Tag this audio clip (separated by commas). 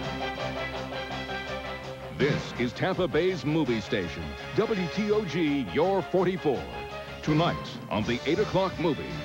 Music, Speech